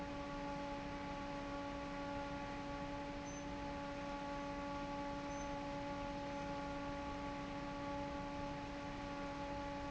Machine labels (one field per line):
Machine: fan